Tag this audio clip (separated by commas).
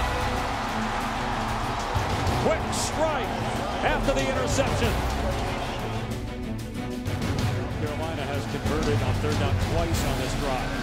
Music, Speech